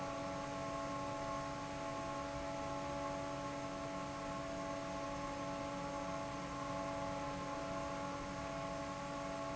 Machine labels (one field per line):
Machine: fan